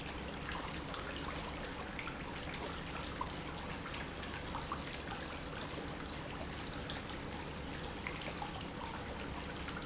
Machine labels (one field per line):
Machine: pump